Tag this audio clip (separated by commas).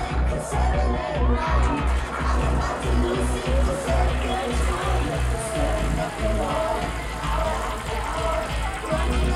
Music